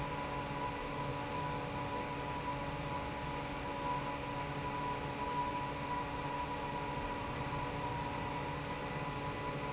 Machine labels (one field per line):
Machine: fan